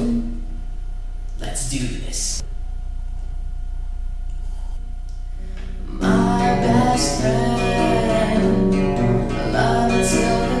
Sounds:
Music, Male singing, Speech

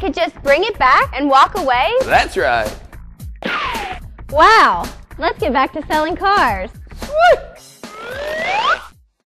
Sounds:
Music, Speech

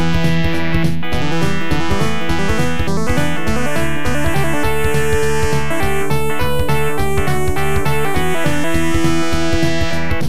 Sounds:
Soundtrack music, Music

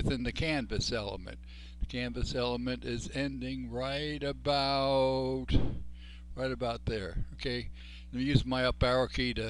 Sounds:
Speech

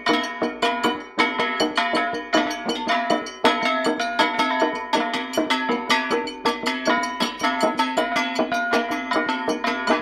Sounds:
Music

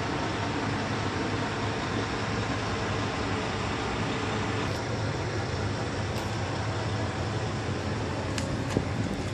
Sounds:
Vehicle

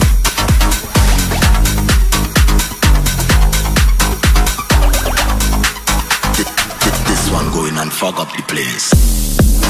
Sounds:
Hum

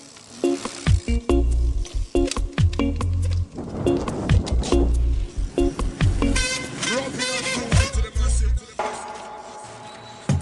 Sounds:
Vehicle, Bicycle, Music

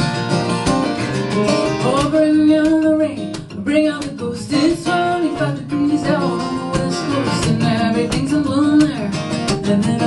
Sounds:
Country, Music

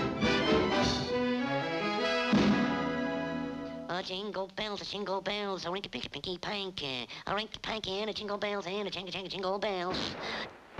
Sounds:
Speech, Music

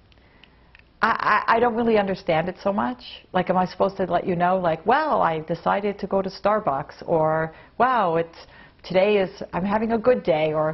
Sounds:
Speech

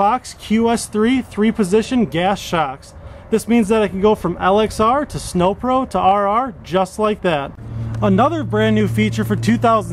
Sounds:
Speech

